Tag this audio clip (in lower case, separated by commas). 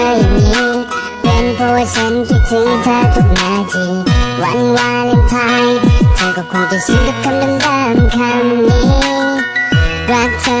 music